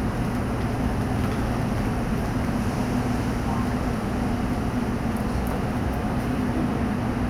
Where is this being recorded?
on a subway train